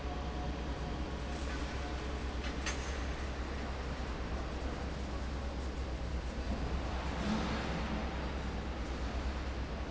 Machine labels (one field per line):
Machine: fan